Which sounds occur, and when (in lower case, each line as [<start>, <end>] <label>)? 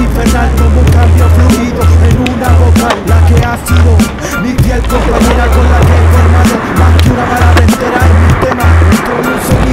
[0.00, 9.72] music
[0.00, 9.72] rapping
[0.00, 9.72] skateboard